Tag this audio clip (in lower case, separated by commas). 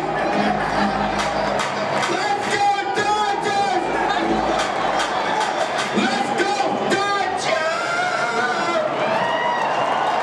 crowd, cheering